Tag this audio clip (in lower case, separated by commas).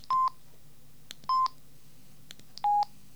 alarm, telephone